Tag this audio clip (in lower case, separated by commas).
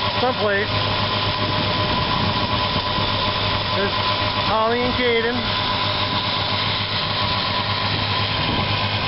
speech